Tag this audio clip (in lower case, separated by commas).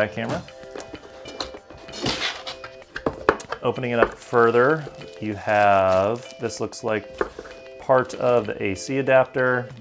inside a small room, music, speech